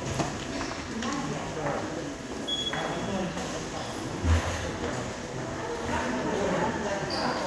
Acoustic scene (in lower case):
subway station